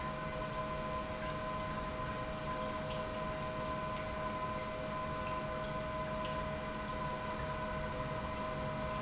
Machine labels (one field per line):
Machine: pump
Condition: normal